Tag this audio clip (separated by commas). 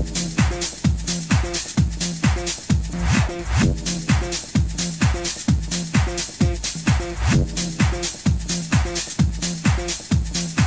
Music